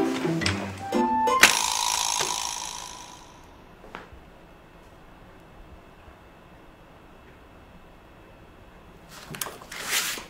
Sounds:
music
inside a small room

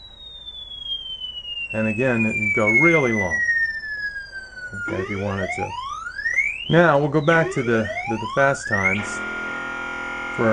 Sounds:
speech

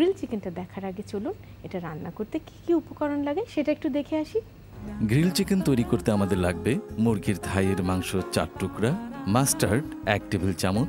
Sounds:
music
speech

